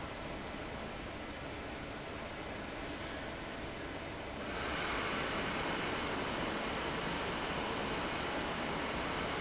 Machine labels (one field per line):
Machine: fan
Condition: abnormal